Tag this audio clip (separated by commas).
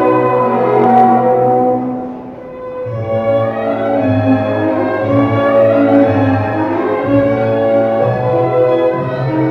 inside a public space, inside a large room or hall, Music